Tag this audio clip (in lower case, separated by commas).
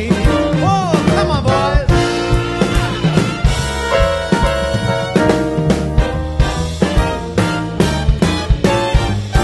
jazz, song, swing music, pop music, singing, ska, music